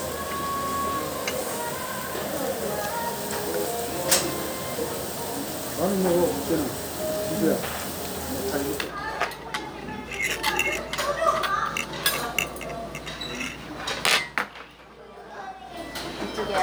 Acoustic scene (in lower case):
restaurant